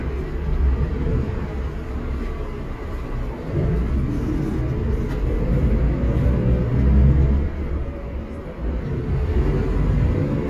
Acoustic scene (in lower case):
bus